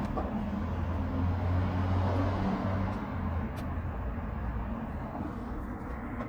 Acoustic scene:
residential area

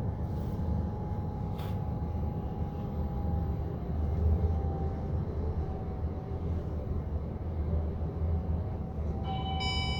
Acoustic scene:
elevator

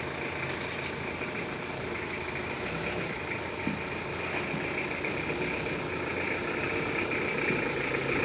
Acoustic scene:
residential area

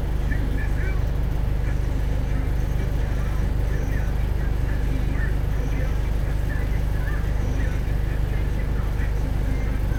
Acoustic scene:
bus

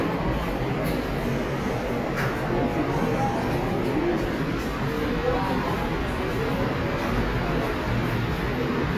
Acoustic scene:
subway station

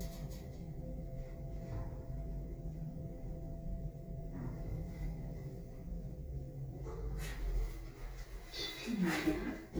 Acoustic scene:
elevator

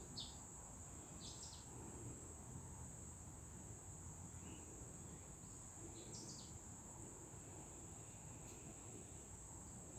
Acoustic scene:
park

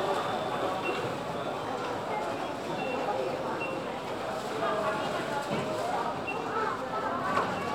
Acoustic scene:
crowded indoor space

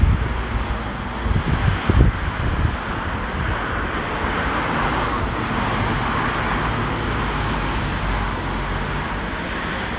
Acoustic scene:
street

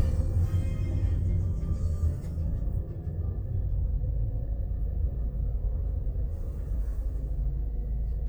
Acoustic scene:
car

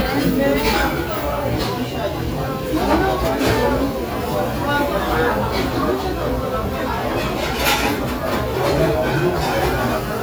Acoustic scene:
restaurant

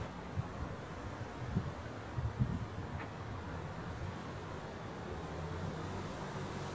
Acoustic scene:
residential area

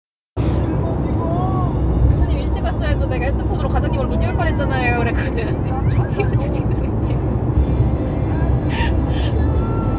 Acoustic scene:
car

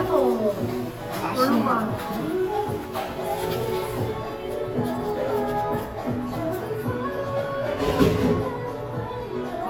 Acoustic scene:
cafe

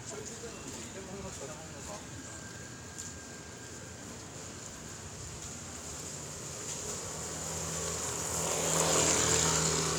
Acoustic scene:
residential area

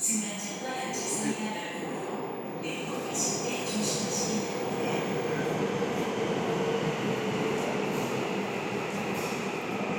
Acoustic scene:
subway station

